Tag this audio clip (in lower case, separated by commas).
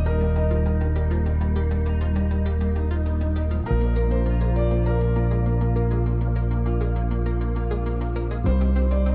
music